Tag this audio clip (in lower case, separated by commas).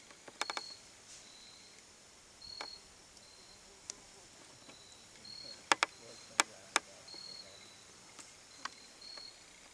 animal, outside, rural or natural